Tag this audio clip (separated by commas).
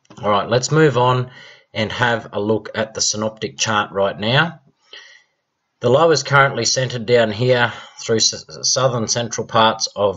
Speech